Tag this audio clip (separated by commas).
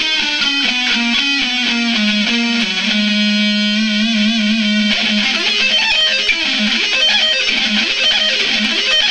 Music, Electric guitar, Plucked string instrument, Strum, Guitar, Musical instrument